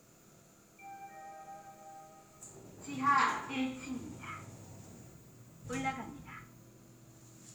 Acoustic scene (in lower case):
elevator